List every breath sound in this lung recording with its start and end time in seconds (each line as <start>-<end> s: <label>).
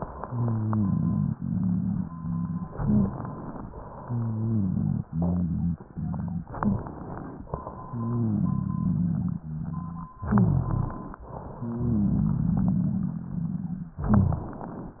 0.00-2.63 s: inhalation
0.24-2.63 s: rhonchi
2.71-3.17 s: rhonchi
2.71-3.64 s: exhalation
3.67-6.43 s: inhalation
4.00-6.43 s: rhonchi
6.50-7.47 s: exhalation
6.54-7.01 s: rhonchi
7.53-10.08 s: inhalation
7.77-10.08 s: rhonchi
10.22-10.94 s: rhonchi
10.22-11.20 s: exhalation
11.32-13.91 s: inhalation
11.58-13.91 s: rhonchi
13.99-14.76 s: rhonchi
13.99-15.00 s: exhalation